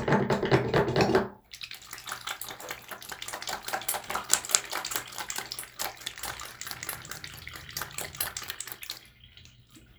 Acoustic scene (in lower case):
restroom